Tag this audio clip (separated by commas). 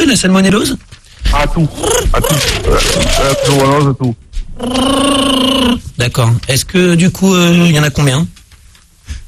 Speech